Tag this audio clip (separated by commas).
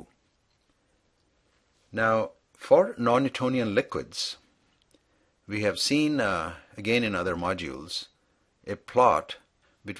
Speech